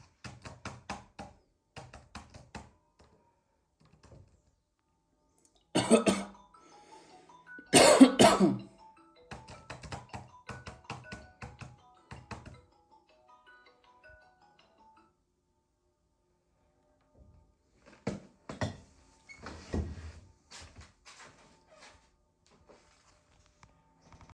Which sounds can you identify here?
keyboard typing, phone ringing, footsteps